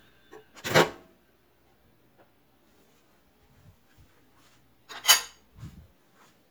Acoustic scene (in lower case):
kitchen